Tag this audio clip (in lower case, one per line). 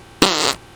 fart